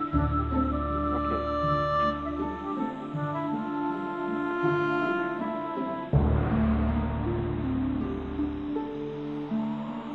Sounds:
music

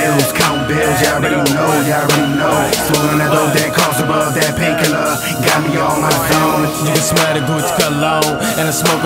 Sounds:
pop music, ska, blues, music, soundtrack music

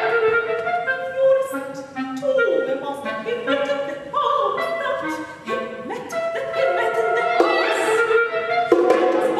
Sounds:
music

